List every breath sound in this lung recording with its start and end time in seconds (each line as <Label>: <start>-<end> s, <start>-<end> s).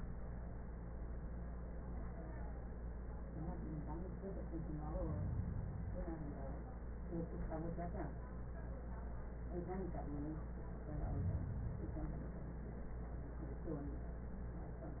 Inhalation: 4.89-6.04 s, 10.98-12.18 s